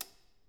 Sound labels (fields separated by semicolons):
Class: switch; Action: being turned on